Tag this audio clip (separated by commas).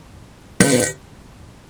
Fart